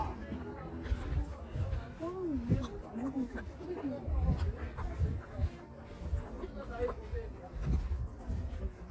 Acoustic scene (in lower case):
park